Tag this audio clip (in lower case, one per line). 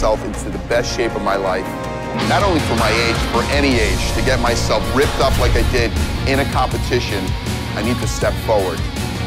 music
speech